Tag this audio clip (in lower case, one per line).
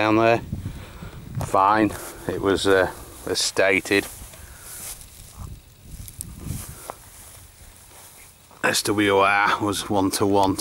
speech